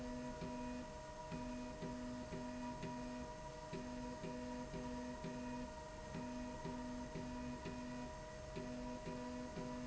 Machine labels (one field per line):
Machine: slide rail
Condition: normal